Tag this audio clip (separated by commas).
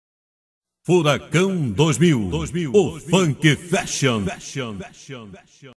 Speech